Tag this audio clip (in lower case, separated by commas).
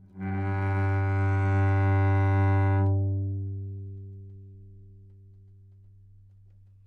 music, musical instrument, bowed string instrument